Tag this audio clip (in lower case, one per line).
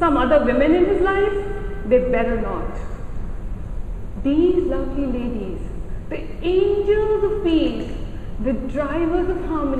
female speech
speech